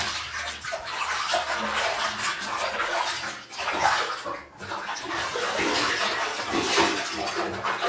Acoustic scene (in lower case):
restroom